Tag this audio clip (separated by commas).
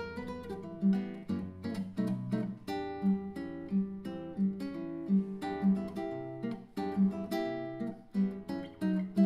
Plucked string instrument, Guitar, Strum, Musical instrument, Music